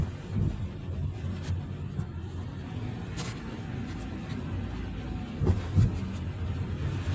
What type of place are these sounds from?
car